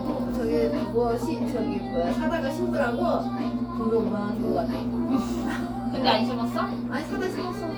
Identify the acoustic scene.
cafe